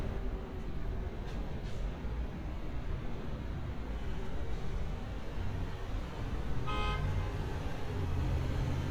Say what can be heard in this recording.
car horn